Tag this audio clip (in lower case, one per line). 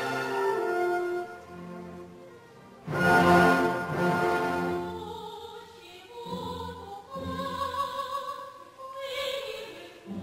opera
classical music
female singing
music